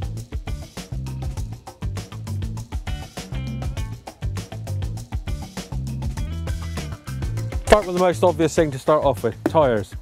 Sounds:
Music, Speech

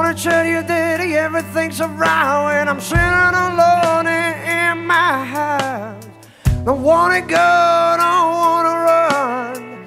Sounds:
Music

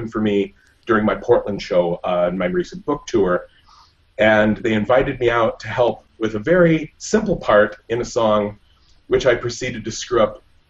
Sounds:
Speech

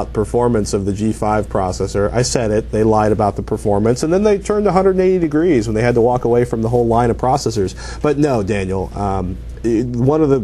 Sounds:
Speech

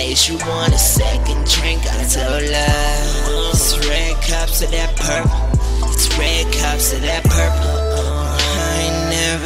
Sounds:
Music

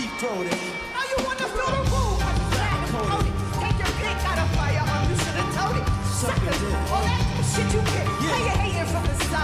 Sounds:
Music

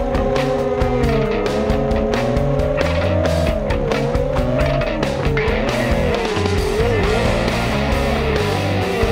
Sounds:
Music

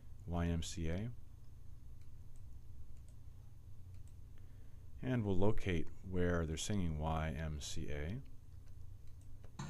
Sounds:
Music, Speech

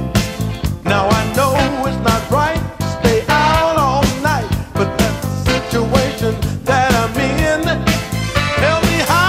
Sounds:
Music

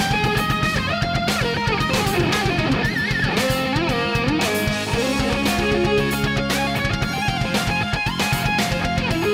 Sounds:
Electric guitar, Musical instrument, Guitar, Music

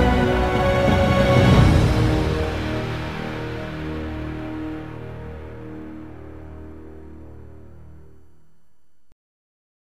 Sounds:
Background music, Music

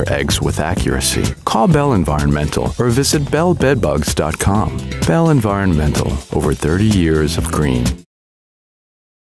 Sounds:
Music, Speech

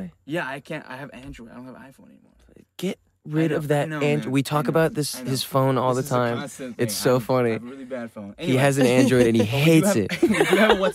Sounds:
Speech

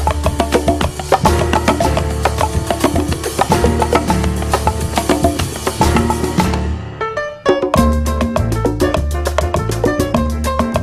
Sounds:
Percussion, Wood block, Music

